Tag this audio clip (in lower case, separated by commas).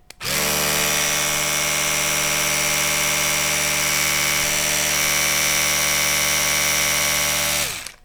home sounds